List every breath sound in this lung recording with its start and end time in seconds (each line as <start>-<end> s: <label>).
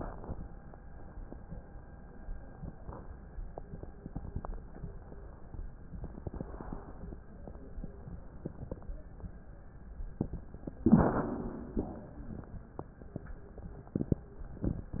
10.80-11.20 s: rhonchi
10.85-11.80 s: inhalation
11.80-12.60 s: exhalation